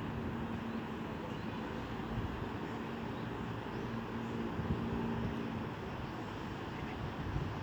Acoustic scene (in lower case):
residential area